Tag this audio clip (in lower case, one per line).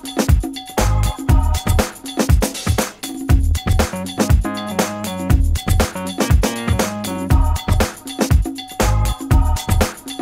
music